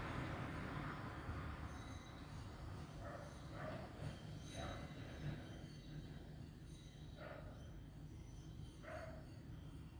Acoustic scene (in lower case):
street